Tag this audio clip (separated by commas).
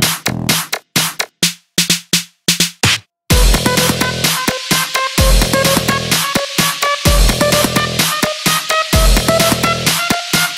Music